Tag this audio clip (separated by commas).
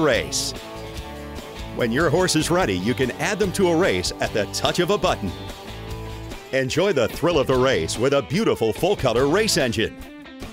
Speech, Music